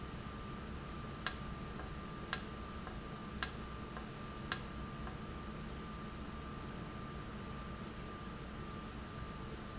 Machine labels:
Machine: valve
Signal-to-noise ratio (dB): 0 dB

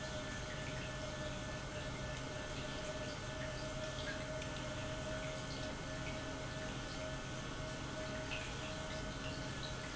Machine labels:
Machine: pump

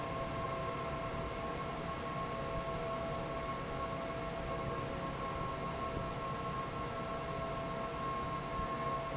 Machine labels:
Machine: fan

